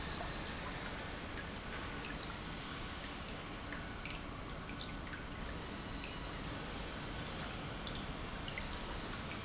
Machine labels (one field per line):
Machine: pump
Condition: normal